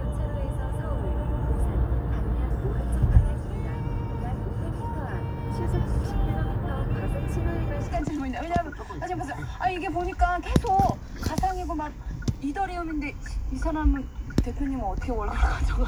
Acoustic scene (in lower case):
car